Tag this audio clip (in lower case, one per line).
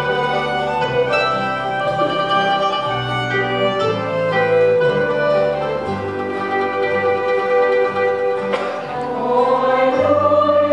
music
gospel music
bluegrass
singing
christian music
choir
classical music